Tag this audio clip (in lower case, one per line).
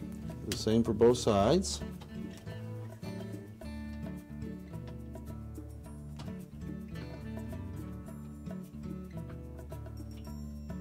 music
speech